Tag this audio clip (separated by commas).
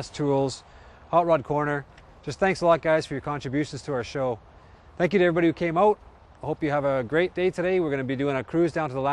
Speech